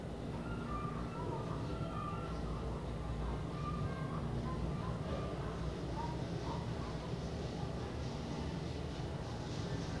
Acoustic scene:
elevator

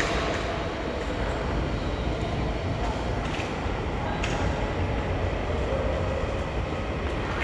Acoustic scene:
subway station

